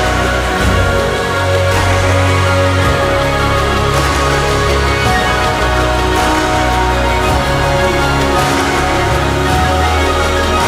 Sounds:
airplane

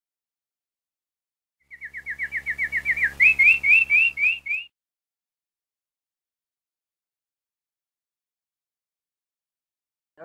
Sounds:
bird song
chirp
bird

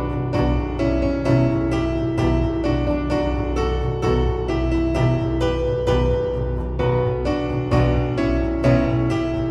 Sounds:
harpsichord
music

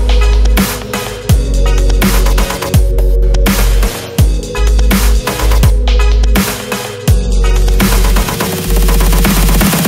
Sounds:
music

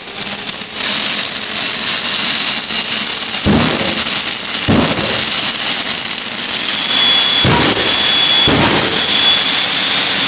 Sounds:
vehicle

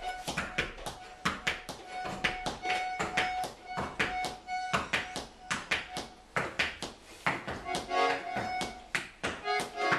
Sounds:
inside a small room
music
accordion

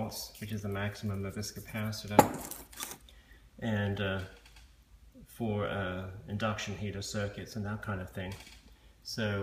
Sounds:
speech

